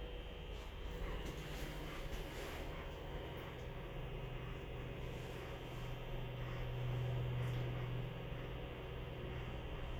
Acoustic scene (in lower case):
elevator